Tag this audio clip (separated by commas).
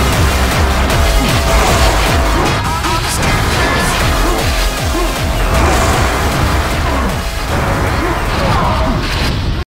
Music